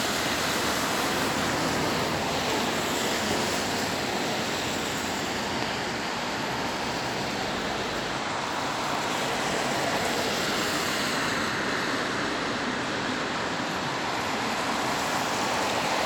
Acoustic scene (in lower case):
street